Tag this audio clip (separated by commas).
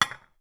home sounds, Chink, dishes, pots and pans, Glass